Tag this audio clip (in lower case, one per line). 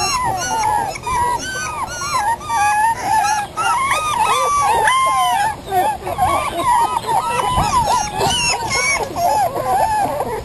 outside, rural or natural
animal